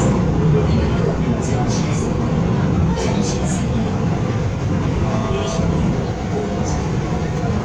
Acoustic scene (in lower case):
subway train